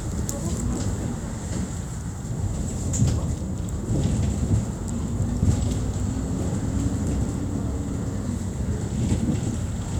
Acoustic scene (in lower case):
bus